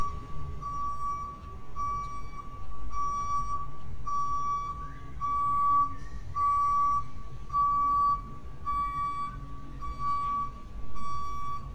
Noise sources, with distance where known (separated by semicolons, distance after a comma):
reverse beeper